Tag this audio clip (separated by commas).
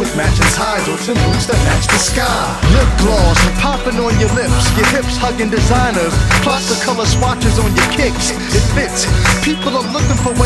Music